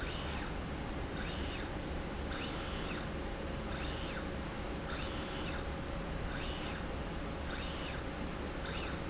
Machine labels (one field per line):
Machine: slide rail